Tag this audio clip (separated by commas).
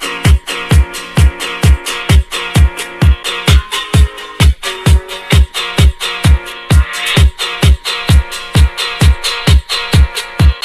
Music